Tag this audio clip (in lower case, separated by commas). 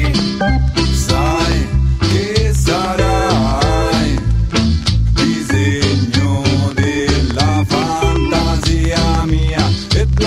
music